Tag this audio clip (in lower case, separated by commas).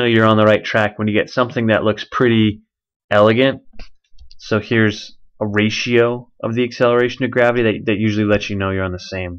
speech